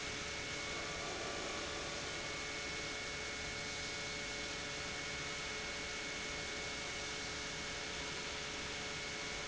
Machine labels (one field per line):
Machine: pump